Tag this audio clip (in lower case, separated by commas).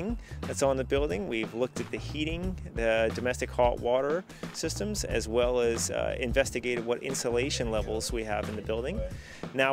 music, speech